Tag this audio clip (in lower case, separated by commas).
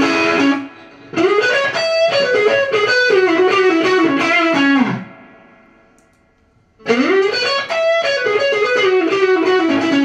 musical instrument, guitar, music, electric guitar, plucked string instrument, playing electric guitar